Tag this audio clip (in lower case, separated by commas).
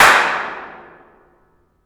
hands, clapping